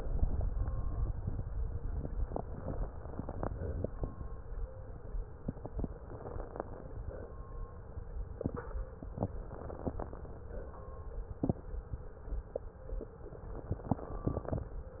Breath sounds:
2.28-3.44 s: inhalation
2.28-3.44 s: crackles
3.44-4.06 s: exhalation
5.42-7.03 s: crackles
5.46-7.01 s: inhalation
7.01-7.43 s: exhalation
8.96-10.43 s: inhalation
8.96-10.43 s: crackles
10.43-10.89 s: exhalation
13.74-14.64 s: inhalation
13.74-14.64 s: crackles

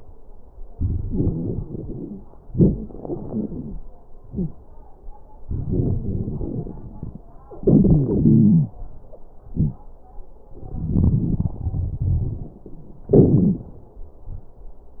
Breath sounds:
0.73-2.23 s: inhalation
1.05-2.23 s: wheeze
2.48-2.88 s: wheeze
2.48-3.79 s: exhalation
4.24-4.58 s: wheeze
5.47-7.26 s: inhalation
5.47-7.26 s: crackles
7.62-9.41 s: exhalation
7.62-9.41 s: wheeze
9.49-9.84 s: wheeze
10.53-12.55 s: inhalation
10.53-12.55 s: crackles
13.10-13.65 s: exhalation
13.10-13.65 s: wheeze

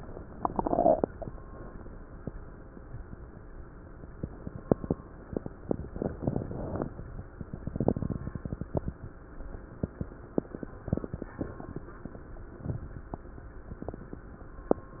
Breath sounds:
6.16-6.80 s: inhalation

